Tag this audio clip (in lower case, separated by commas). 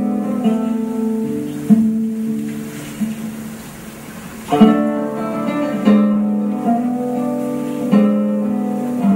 music, plucked string instrument, strum, musical instrument, guitar, orchestra